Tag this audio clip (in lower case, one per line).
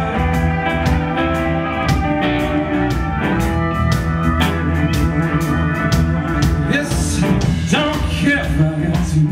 music